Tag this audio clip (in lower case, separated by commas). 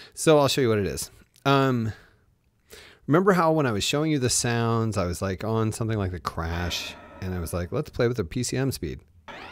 synthesizer